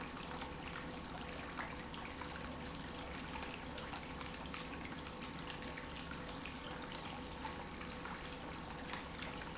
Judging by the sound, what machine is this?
pump